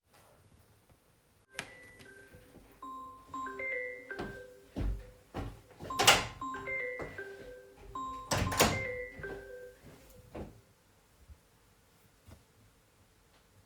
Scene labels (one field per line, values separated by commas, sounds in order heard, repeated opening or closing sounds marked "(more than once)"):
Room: bedroom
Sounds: phone ringing, footsteps, door (more than once)